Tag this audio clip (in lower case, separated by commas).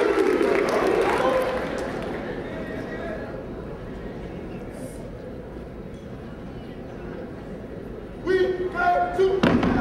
thump